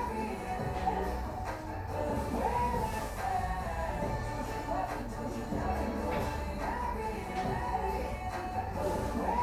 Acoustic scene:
cafe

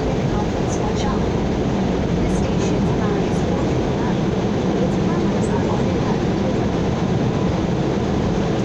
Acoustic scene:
subway train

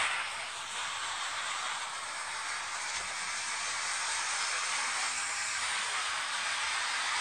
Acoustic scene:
street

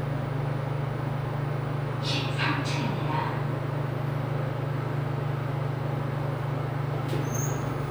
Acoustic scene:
elevator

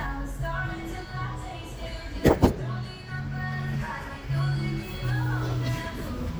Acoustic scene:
cafe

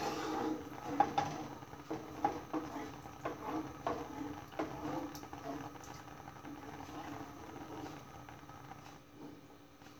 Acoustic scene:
kitchen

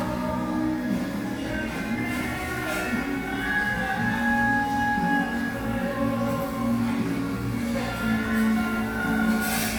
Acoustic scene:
cafe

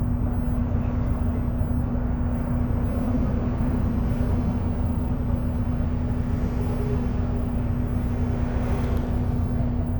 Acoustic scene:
bus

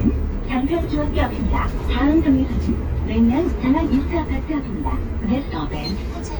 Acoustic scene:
bus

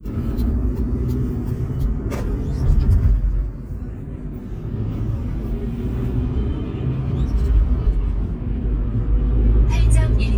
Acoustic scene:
car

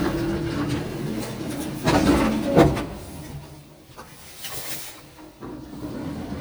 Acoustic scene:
elevator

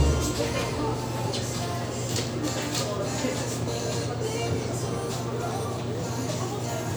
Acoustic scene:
restaurant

